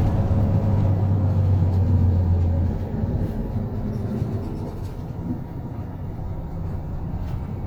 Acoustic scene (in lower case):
bus